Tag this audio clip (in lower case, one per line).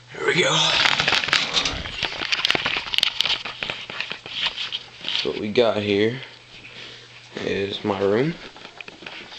speech